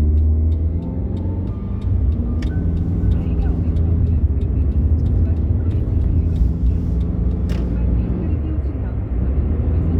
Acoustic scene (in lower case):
car